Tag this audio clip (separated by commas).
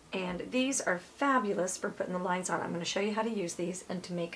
Speech